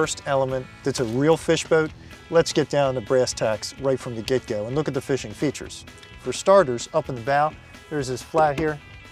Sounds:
speech, music

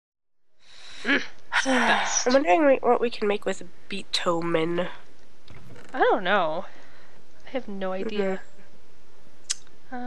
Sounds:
speech

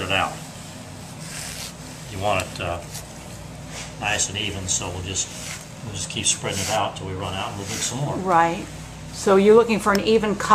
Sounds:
speech

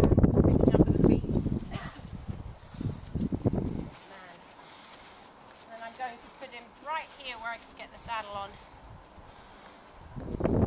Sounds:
animal, speech

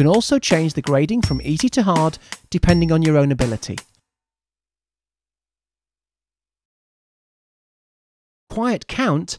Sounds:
music, speech

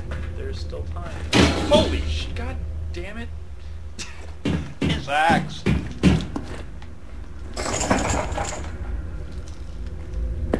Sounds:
speech

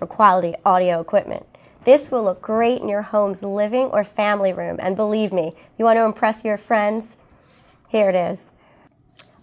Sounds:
speech

